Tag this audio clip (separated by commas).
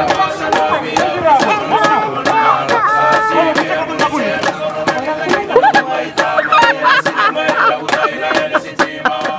Music, Speech